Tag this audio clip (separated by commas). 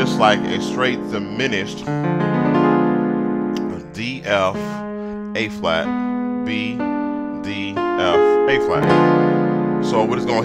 Music, Speech